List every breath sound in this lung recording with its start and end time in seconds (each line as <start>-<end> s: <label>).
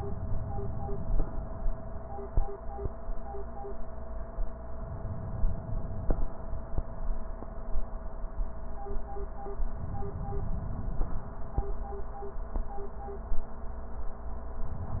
4.72-6.12 s: inhalation
9.72-11.13 s: inhalation